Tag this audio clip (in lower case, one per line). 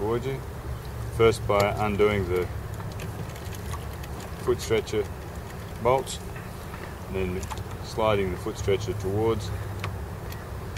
speech
vehicle
boat